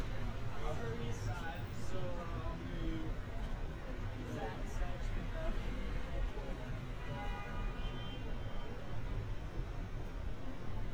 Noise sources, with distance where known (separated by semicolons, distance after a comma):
car horn, far; person or small group talking, near